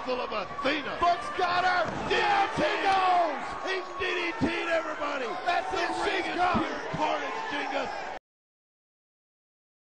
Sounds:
speech

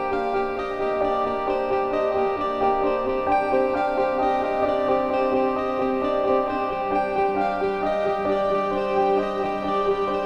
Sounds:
music
keyboard (musical)

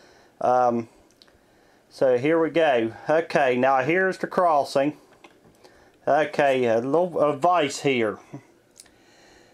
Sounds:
speech

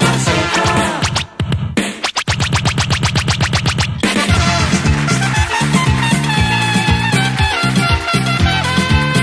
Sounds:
music
theme music

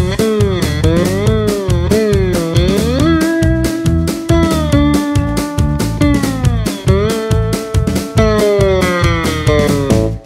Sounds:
playing steel guitar

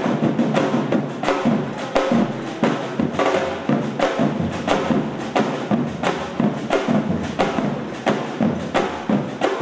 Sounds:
people marching

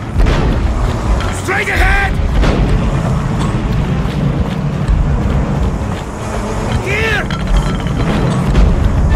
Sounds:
speech
music

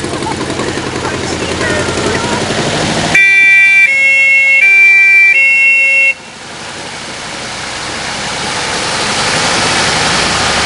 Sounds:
siren
emergency vehicle
fire truck (siren)

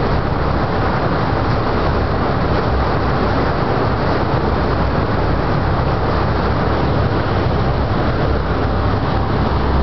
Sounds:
vehicle

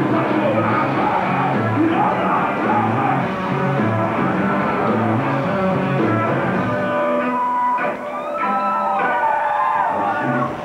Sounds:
music

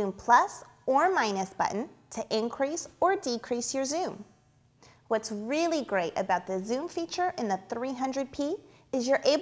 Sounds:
speech

